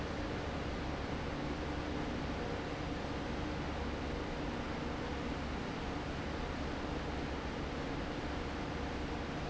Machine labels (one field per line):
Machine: fan